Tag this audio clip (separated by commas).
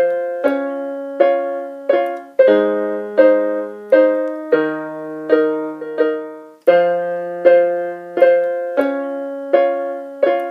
playing synthesizer